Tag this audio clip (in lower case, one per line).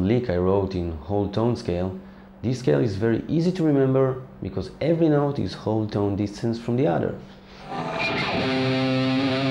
speech
musical instrument
music
guitar
electric guitar